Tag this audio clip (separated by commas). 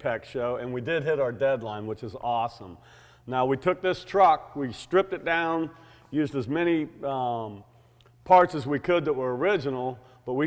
Speech